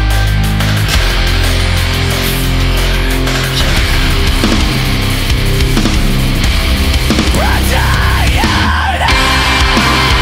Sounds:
Angry music, Music

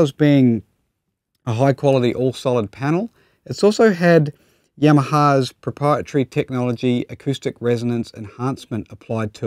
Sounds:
Speech

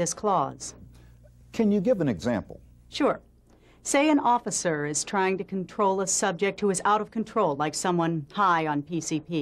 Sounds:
Conversation, Speech

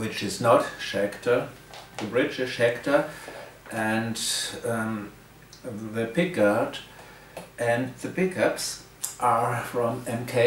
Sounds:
Speech

